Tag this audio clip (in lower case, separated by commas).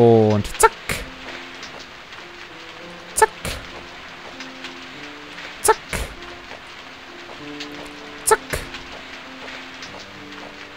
speech, music